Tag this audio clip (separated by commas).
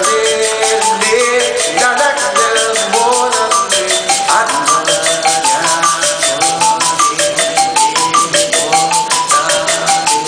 Music